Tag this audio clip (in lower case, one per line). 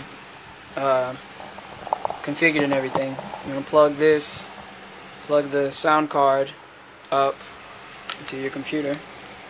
speech
inside a small room